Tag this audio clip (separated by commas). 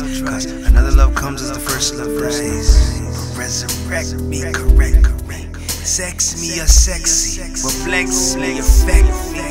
Music